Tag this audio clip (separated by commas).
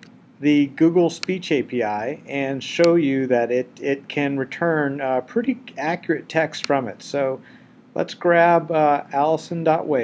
Narration, man speaking, Speech